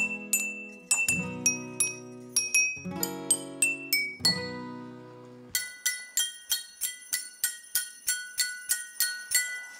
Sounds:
Glass, Music

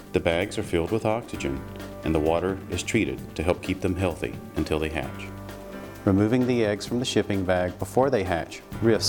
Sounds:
Music, Speech

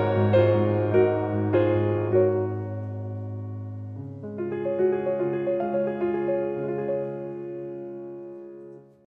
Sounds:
Music

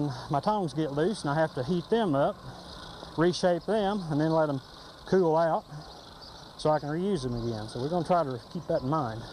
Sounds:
Music, Speech, outside, rural or natural

